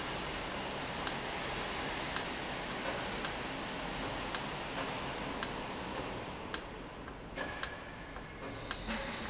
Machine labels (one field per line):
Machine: valve